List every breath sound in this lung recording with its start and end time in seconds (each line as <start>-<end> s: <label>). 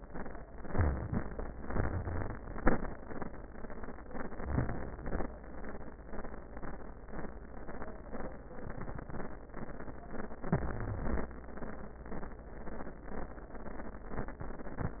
0.62-1.50 s: crackles
0.62-1.52 s: inhalation
1.55-2.54 s: crackles
1.57-2.47 s: exhalation
4.42-5.31 s: inhalation
10.45-11.31 s: crackles
10.45-11.35 s: inhalation